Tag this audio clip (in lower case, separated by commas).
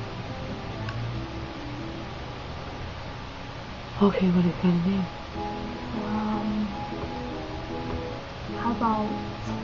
music, speech